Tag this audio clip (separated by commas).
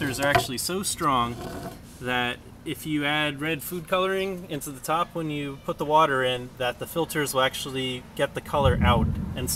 Speech